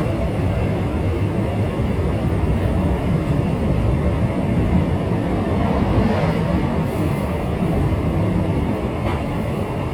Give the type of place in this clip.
subway train